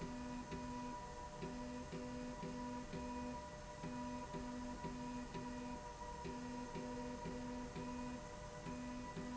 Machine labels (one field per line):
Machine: slide rail